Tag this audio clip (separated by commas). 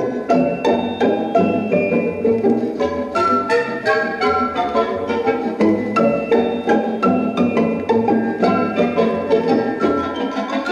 Music